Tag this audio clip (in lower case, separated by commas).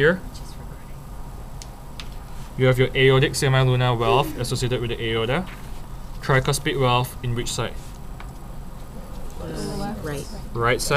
speech